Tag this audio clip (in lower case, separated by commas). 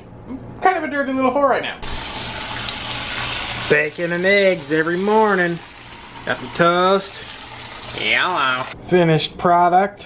speech, inside a small room